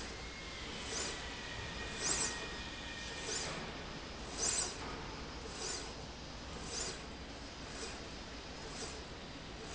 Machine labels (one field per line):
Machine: slide rail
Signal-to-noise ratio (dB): 0 dB